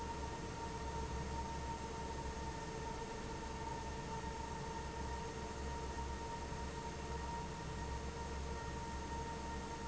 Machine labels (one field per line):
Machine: fan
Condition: abnormal